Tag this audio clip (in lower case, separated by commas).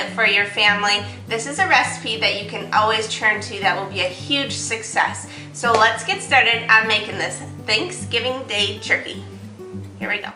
music, speech